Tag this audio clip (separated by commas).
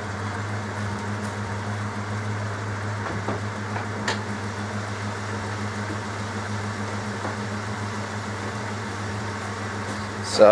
Vehicle, Car, outside, urban or man-made